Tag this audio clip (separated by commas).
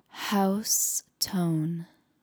Speech, Female speech, Human voice